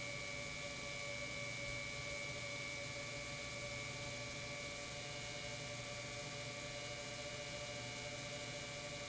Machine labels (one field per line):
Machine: pump